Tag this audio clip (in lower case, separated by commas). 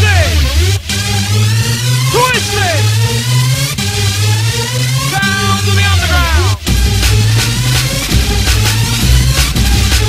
music, electronic dance music